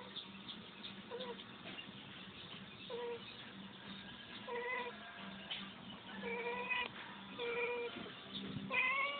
A kitten making noise